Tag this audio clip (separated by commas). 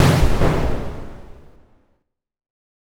Explosion